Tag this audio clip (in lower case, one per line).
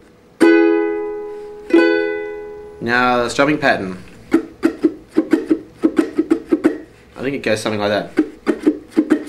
ukulele
plucked string instrument
musical instrument